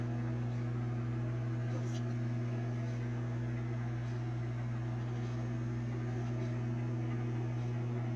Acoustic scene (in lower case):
kitchen